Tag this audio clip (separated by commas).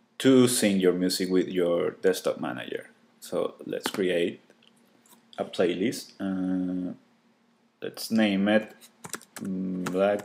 Speech